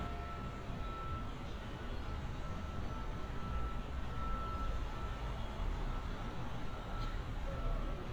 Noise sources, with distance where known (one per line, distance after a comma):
background noise